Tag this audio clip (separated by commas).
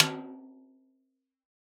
Percussion, Snare drum, Drum, Musical instrument, Music